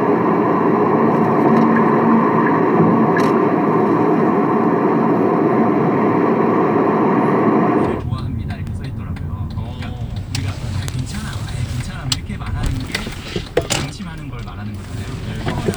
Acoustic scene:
car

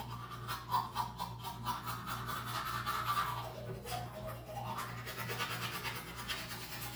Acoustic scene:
restroom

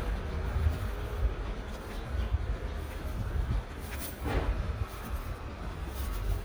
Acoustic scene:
residential area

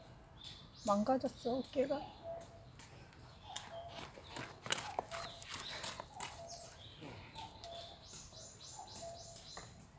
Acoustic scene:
park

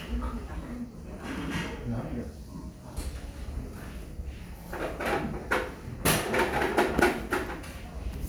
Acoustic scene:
restaurant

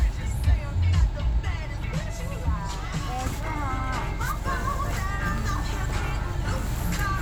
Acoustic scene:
car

